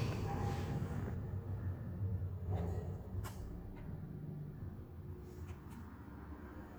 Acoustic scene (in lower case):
elevator